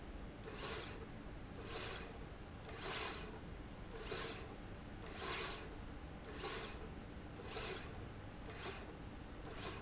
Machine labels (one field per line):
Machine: slide rail